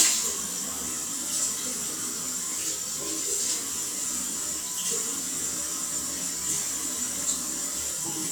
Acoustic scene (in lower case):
restroom